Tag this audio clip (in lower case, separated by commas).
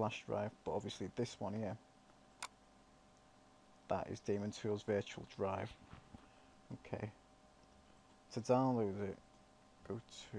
speech